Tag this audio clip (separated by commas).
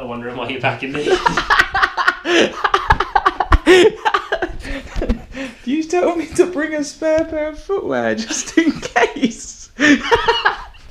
inside a small room, Speech